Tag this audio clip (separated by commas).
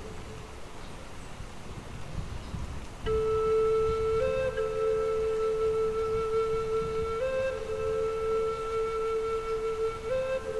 Rain